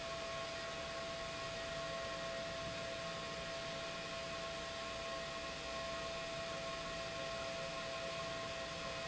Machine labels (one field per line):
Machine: pump